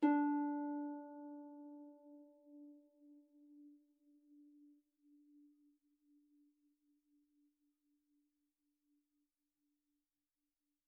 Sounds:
Harp, Music, Musical instrument

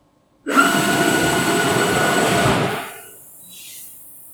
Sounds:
Mechanisms

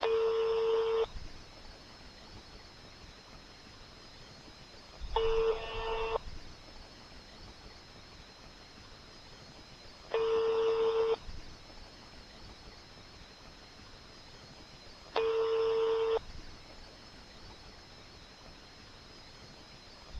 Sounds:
Telephone, Alarm

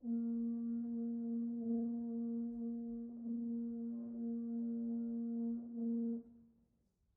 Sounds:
Music, Brass instrument, Musical instrument

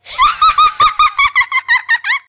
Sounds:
Laughter, Human voice

